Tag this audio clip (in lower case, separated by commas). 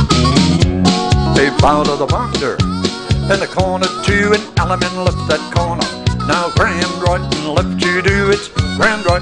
music